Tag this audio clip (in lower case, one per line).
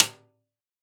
music
musical instrument
percussion
snare drum
drum